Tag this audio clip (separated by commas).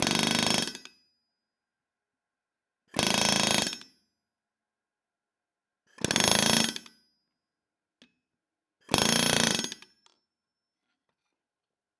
Tools